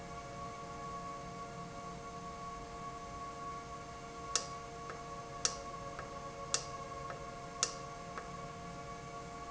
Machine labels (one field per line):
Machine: valve